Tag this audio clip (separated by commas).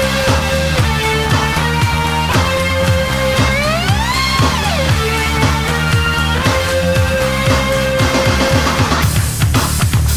outside, rural or natural, Music